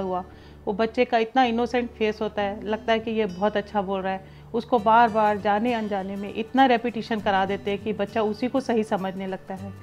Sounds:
monologue, Music, Female speech, Speech

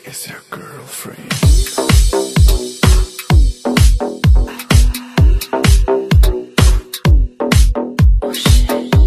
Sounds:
Exciting music, Music

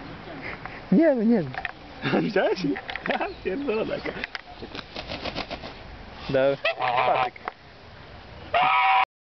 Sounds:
Fowl, Honk, Goose

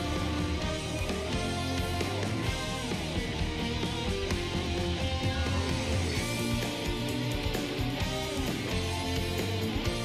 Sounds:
Music

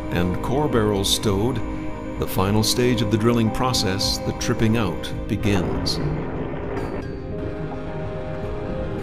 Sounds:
Speech, Music

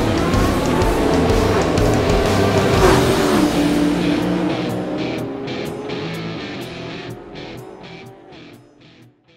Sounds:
Car passing by, Car, Motor vehicle (road), Music, Vehicle

